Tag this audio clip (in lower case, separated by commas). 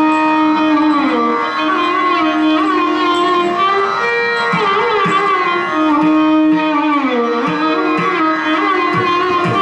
musical instrument, music, fiddle